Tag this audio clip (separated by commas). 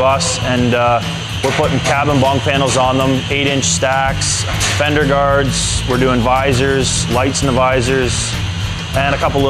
Music, Speech